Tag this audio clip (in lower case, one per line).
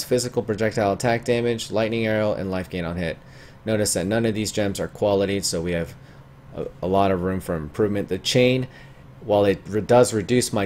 speech